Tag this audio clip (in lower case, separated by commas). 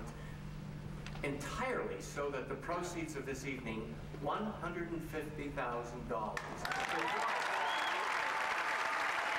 speech, monologue, male speech